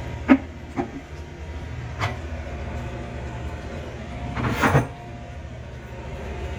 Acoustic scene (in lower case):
kitchen